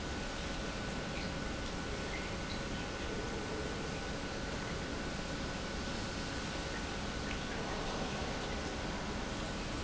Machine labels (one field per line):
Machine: pump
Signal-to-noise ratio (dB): -6 dB